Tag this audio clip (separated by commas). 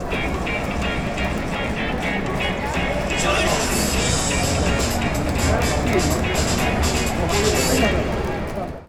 Human group actions, Crowd